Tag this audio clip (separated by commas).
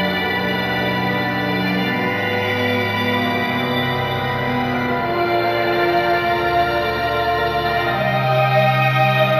Music, Musical instrument, Guitar, Plucked string instrument